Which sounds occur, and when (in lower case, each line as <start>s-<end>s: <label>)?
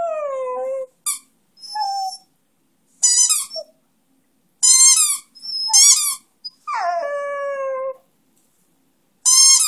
0.0s-0.9s: howl
0.0s-9.6s: background noise
1.0s-1.3s: squawk
1.6s-2.3s: howl
3.0s-3.6s: squawk
3.5s-3.7s: howl
4.6s-5.3s: squawk
5.3s-6.3s: howl
5.7s-6.2s: squawk
6.7s-8.0s: howl
9.2s-9.6s: squawk